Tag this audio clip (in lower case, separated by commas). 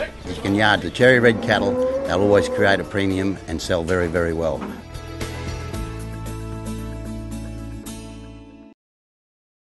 music, speech